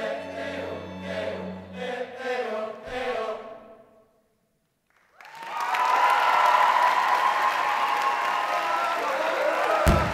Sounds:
Singing, Timpani, Music

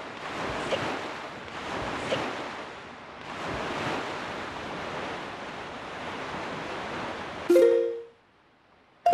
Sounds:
Wind noise (microphone)

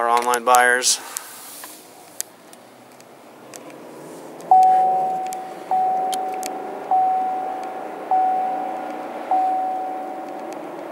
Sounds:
Vehicle, Speech, Car

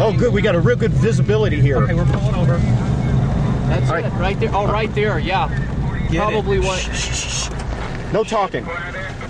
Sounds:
tornado roaring

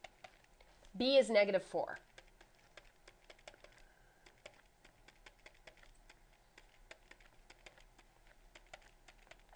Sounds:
Speech, inside a small room

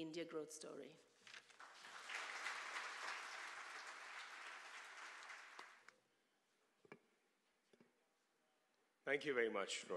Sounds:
Narration, man speaking, woman speaking, Speech

